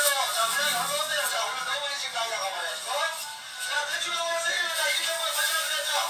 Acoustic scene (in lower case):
crowded indoor space